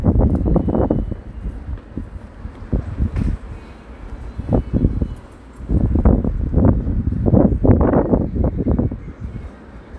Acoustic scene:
residential area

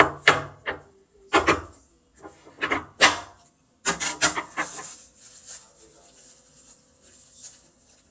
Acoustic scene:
kitchen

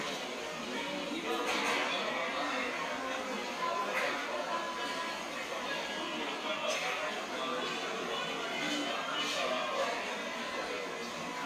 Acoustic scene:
cafe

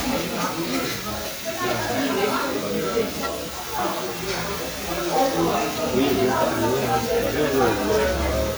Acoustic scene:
restaurant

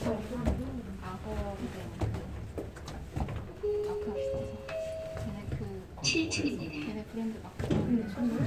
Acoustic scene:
elevator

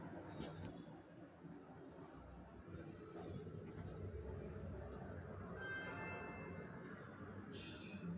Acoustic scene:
elevator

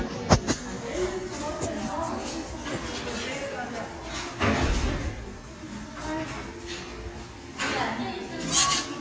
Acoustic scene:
crowded indoor space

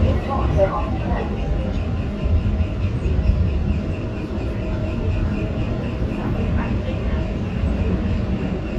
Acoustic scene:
subway train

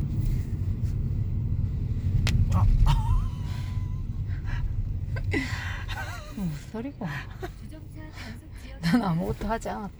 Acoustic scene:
car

